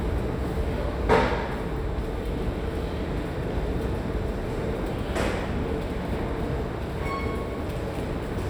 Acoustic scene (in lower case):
subway station